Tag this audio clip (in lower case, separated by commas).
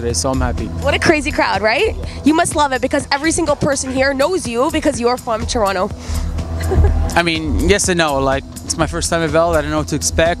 music, speech